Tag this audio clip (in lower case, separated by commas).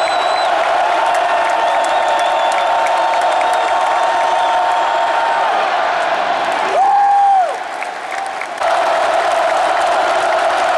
speech